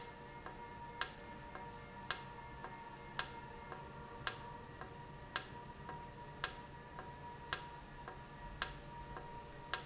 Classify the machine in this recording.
valve